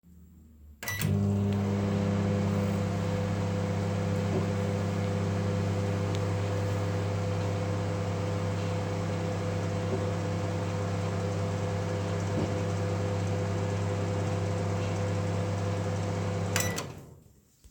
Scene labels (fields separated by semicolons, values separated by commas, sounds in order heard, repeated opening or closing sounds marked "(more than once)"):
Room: kitchen; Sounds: microwave